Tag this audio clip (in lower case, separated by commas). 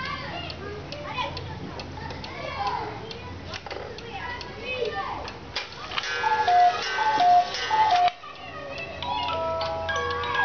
tick-tock, speech